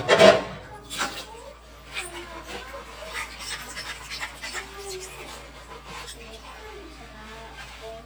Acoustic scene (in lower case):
kitchen